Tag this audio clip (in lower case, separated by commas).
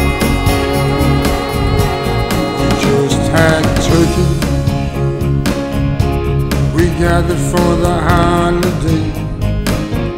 music